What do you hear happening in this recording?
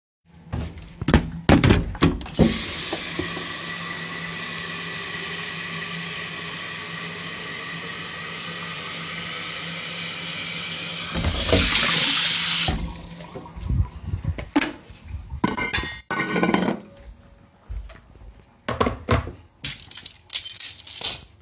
I took my kettle and moved to kitchen to take some water. My keys suddenly fell